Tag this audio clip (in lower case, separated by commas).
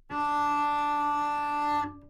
music, musical instrument, bowed string instrument